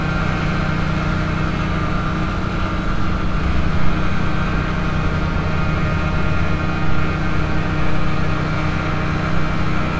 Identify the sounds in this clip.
engine of unclear size